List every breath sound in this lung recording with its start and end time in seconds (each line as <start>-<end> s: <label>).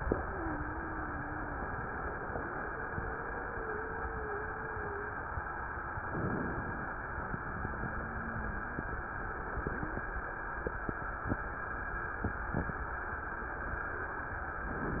0.10-1.60 s: wheeze
2.26-5.22 s: wheeze
6.00-7.08 s: inhalation
7.12-8.99 s: wheeze
9.62-10.08 s: wheeze